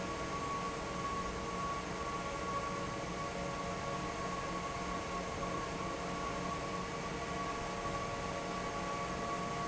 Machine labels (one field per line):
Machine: fan